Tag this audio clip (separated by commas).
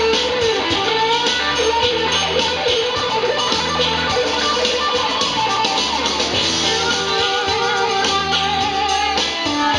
Electric guitar, Music